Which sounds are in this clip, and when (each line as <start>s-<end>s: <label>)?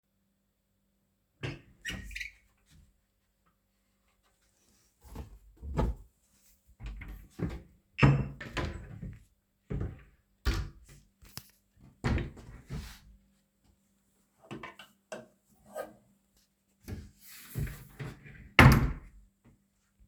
1.4s-2.4s: door
8.4s-9.2s: wardrobe or drawer
9.7s-10.8s: wardrobe or drawer
11.9s-13.0s: wardrobe or drawer
18.5s-19.0s: wardrobe or drawer